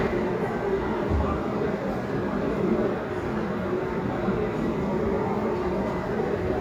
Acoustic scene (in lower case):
restaurant